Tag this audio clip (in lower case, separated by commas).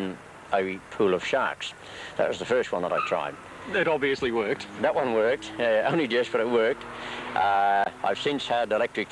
speech, vehicle